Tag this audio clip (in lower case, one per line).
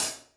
music
cymbal
hi-hat
percussion
musical instrument